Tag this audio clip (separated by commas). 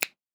Hands, Finger snapping